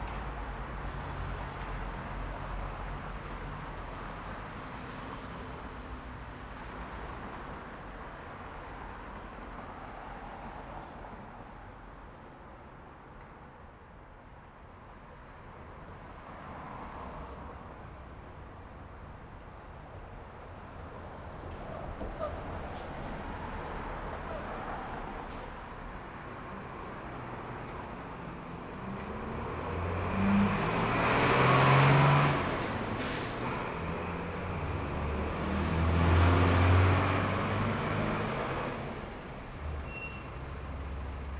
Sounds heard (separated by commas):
bus wheels rolling, bus, bus compressor, bus engine idling, car, car wheels rolling, car engine accelerating, bus engine accelerating, bus brakes